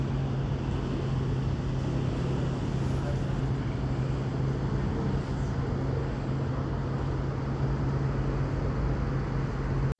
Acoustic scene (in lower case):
street